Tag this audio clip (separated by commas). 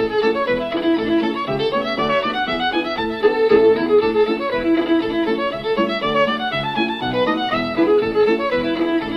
Violin, Musical instrument, Music